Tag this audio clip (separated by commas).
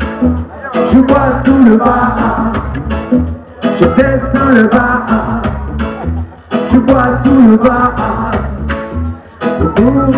Music, Sound effect